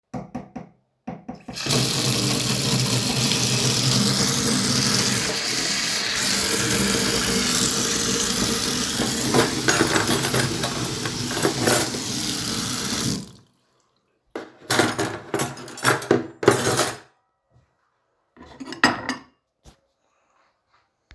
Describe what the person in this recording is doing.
While the water was running and I handled dishes and cutlery